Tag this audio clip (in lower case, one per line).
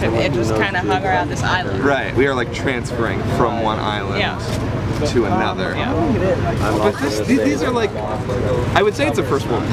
speech